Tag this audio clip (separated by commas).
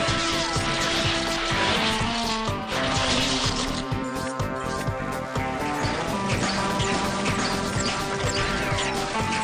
Music